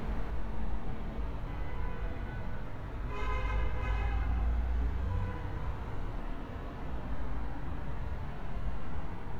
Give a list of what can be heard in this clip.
car horn